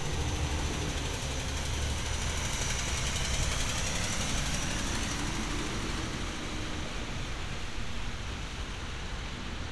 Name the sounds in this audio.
engine of unclear size